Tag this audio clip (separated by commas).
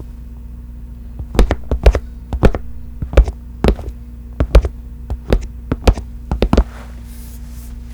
footsteps